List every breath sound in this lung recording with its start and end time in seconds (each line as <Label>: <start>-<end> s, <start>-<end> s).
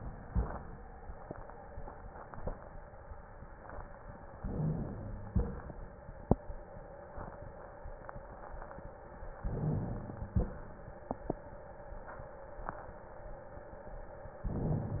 Inhalation: 4.41-5.30 s, 9.46-10.35 s
Exhalation: 5.31-6.04 s, 10.37-11.00 s